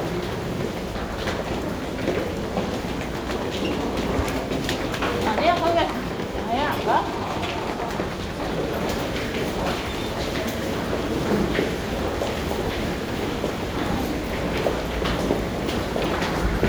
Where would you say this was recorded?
in a subway station